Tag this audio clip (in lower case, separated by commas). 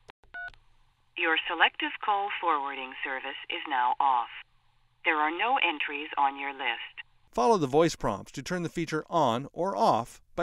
speech, telephone